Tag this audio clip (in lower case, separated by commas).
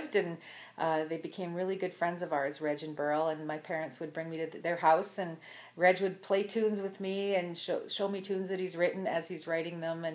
speech